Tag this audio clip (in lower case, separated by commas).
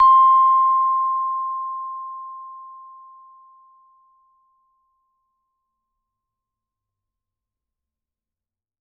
percussion, musical instrument, mallet percussion, music